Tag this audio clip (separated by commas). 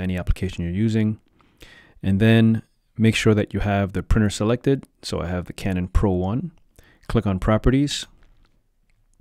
Speech